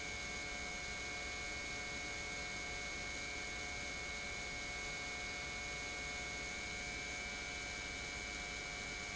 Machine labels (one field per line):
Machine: pump